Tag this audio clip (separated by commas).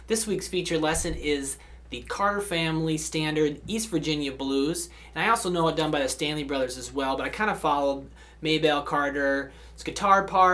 Speech